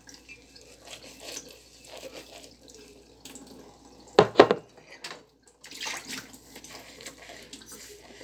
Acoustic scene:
kitchen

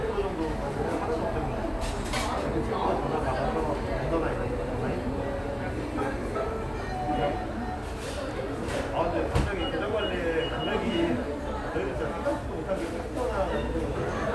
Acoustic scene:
cafe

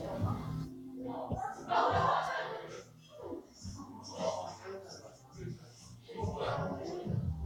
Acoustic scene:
crowded indoor space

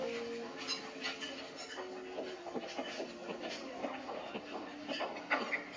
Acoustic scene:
restaurant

